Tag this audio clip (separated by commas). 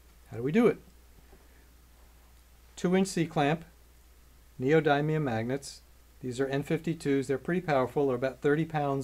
Speech